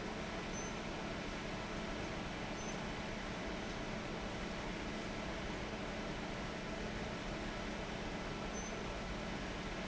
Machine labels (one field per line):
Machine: fan